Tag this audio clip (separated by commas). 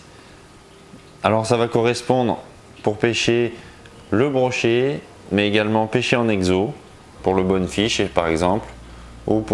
Music, Speech